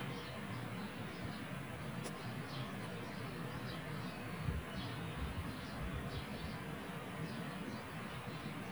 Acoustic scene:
park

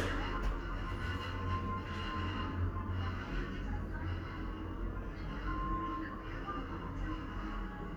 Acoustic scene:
elevator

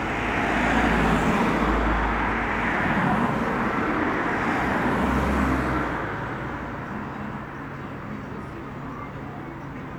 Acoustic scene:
street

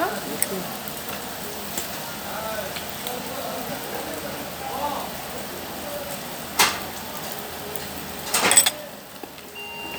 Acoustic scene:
restaurant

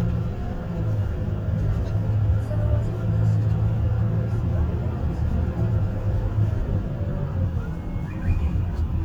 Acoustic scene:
car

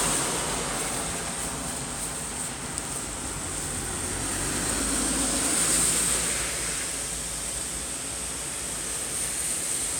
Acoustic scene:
street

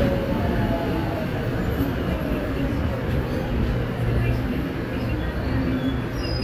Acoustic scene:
subway station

